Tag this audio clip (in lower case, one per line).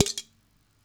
domestic sounds
dishes, pots and pans